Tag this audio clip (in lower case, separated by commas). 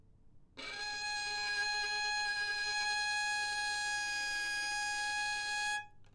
bowed string instrument, music, musical instrument